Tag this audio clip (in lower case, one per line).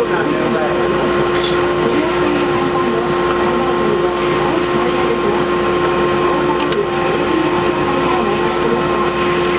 speech